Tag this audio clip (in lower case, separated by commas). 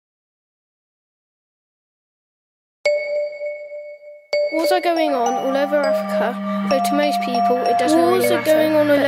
speech, child speech, music